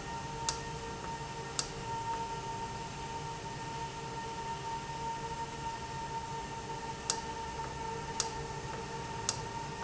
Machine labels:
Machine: valve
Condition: normal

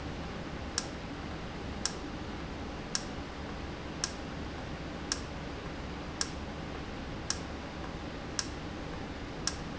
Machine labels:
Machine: valve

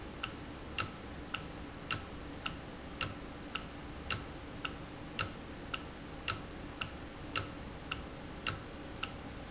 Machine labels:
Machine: valve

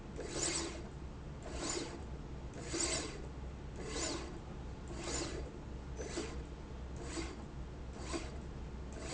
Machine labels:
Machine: slide rail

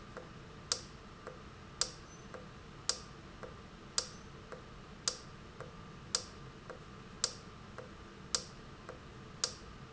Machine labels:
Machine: valve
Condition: normal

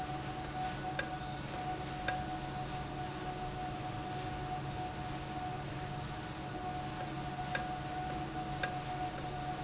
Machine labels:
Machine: valve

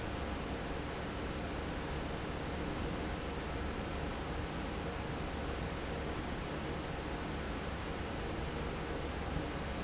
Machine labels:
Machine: fan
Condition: normal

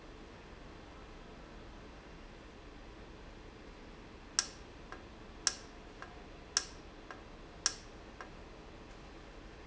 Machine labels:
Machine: valve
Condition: normal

